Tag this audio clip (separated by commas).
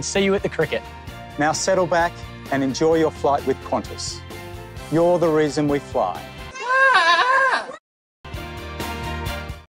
Music, Goat, Speech